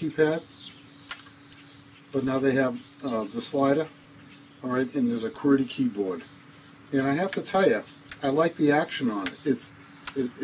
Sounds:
speech
outside, rural or natural

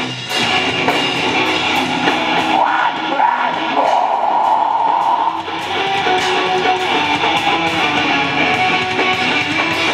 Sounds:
guitar
musical instrument
music

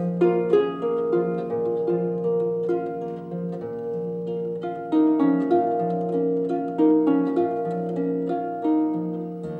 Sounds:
music
harp
playing harp

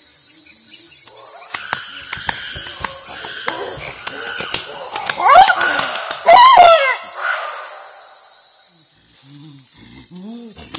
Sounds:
chimpanzee pant-hooting

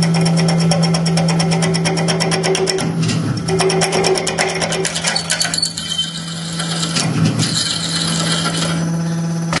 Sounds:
drill
tools

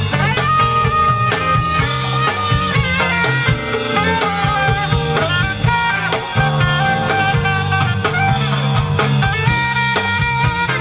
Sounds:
music
jazz

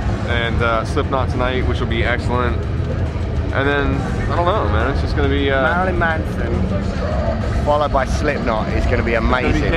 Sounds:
music
speech

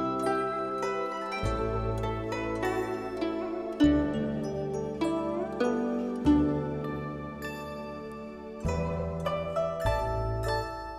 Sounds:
harp

